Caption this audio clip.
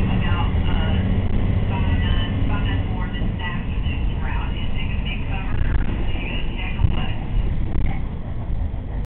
A person talks on a speaker, but it is muffled speech